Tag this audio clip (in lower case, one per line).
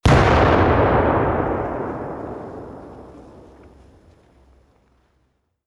explosion